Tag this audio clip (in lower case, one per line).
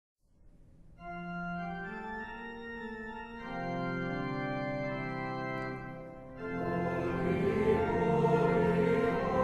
organ
music